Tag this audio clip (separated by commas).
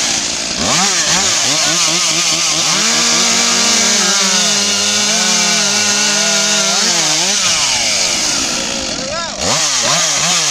Wood, chainsawing trees, Chainsaw, Tools, Power tool, Speech